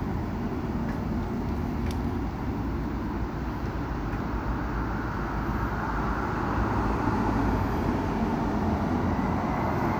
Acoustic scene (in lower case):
street